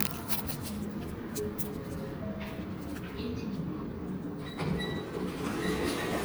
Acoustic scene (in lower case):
elevator